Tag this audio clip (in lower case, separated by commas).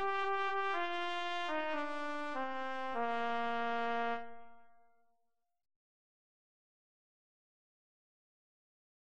brass instrument, trumpet